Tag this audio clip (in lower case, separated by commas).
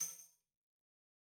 percussion, tambourine, music, musical instrument